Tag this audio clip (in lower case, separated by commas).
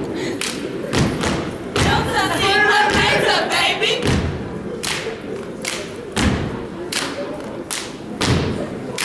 speech, thump